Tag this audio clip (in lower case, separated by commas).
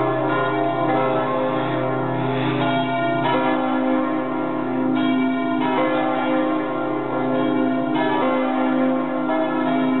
church bell ringing, church bell